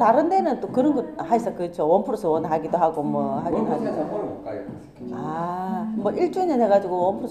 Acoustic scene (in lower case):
cafe